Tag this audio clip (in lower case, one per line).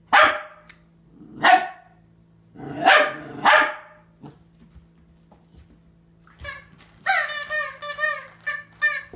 dog barking